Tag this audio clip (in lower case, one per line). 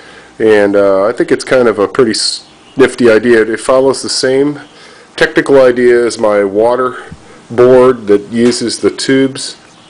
speech